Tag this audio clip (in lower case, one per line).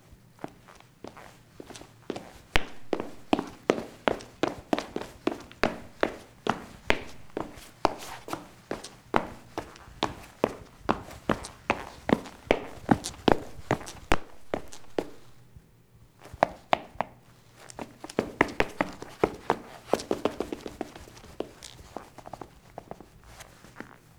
run